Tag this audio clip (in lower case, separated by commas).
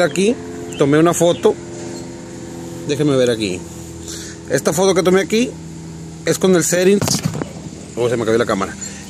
speech